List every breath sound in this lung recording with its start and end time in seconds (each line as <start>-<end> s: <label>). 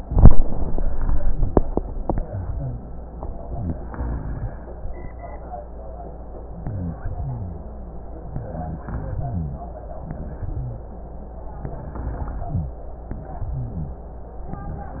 6.60-7.04 s: rhonchi
6.60-7.00 s: inhalation
7.04-7.67 s: exhalation
7.14-7.67 s: rhonchi
8.25-8.82 s: inhalation
8.43-8.82 s: rhonchi
8.82-9.70 s: exhalation
8.90-9.68 s: rhonchi
10.13-10.59 s: inhalation
10.59-10.93 s: rhonchi
10.59-11.02 s: exhalation
11.65-12.48 s: inhalation
12.49-12.83 s: exhalation
12.49-12.83 s: rhonchi